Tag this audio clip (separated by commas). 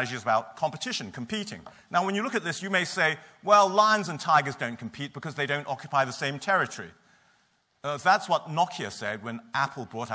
Speech